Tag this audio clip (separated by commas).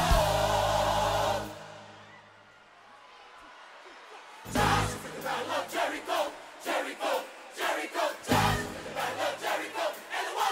Music